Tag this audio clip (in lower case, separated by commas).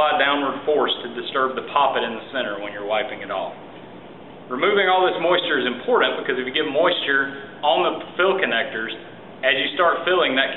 speech